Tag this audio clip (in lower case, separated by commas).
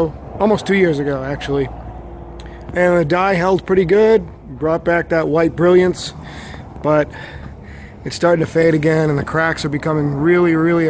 speech